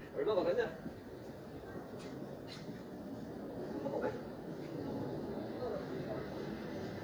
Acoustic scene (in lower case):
residential area